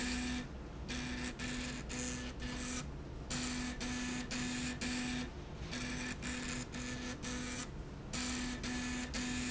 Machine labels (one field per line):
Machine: slide rail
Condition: abnormal